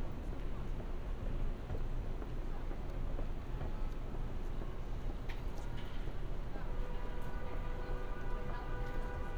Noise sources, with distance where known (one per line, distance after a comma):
car horn
person or small group talking, near